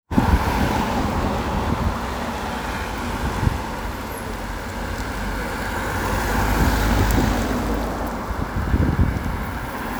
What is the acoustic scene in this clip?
street